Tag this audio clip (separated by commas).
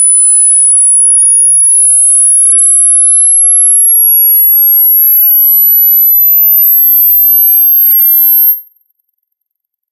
Sine wave